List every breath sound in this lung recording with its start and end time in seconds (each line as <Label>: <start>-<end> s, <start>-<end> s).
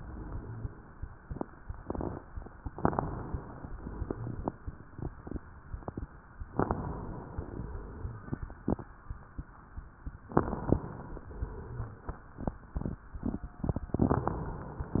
Inhalation: 2.74-3.68 s, 6.54-7.48 s, 10.30-11.24 s, 13.96-14.94 s
Exhalation: 3.68-4.88 s, 7.50-8.86 s, 11.26-12.62 s, 14.92-15.00 s
Crackles: 2.74-3.58 s, 3.68-4.52 s, 6.51-7.36 s, 7.46-8.30 s, 10.32-11.22 s, 13.89-14.88 s, 14.92-15.00 s